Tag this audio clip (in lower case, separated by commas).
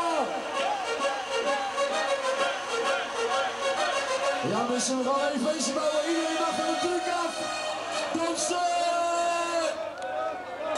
speech, music